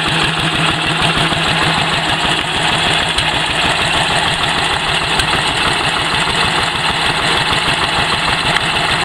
Engine chugging and idling